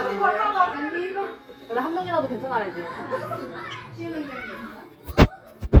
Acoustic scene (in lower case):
crowded indoor space